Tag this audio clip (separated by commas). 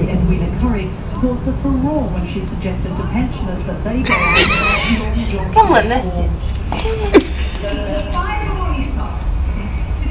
Speech